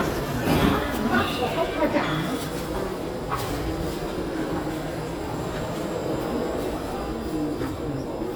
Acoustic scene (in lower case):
subway station